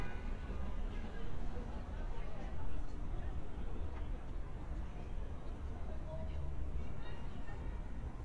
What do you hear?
person or small group talking